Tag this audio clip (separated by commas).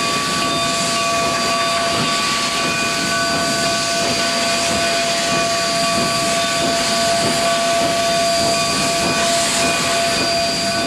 Music